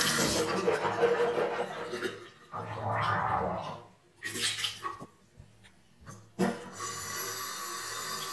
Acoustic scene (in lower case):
restroom